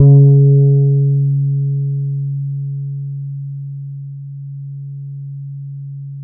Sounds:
Plucked string instrument, Guitar, Bass guitar, Musical instrument, Music

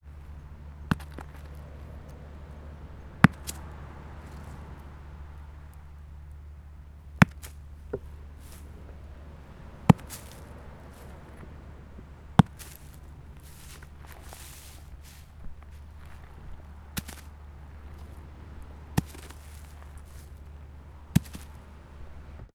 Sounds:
Ocean, Water

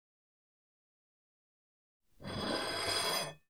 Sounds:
dishes, pots and pans, home sounds

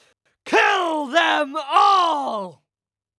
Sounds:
Speech, man speaking, Human voice, Shout

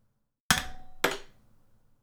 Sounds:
Tap

